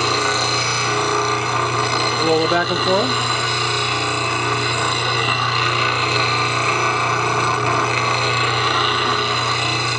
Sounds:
lathe spinning

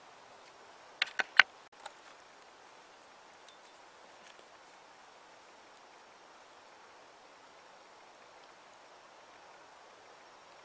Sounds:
outside, rural or natural

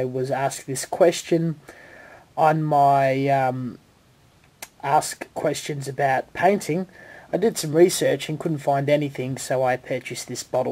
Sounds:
Speech

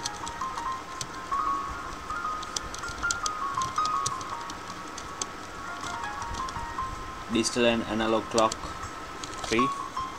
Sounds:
Speech, Music

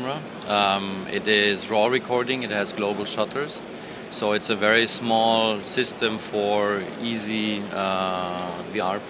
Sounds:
Speech

